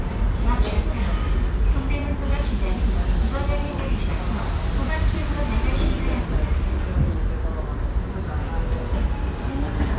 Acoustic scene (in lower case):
subway train